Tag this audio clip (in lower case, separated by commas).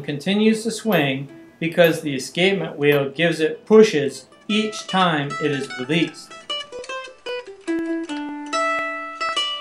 music, speech